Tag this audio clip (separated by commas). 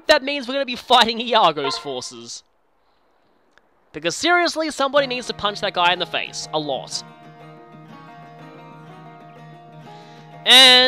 Music, Speech